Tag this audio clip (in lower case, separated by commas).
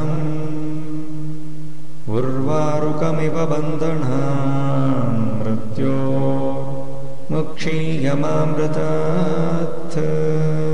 mantra, music